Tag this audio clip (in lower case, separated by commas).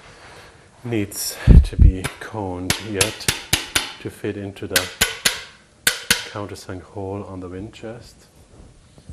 speech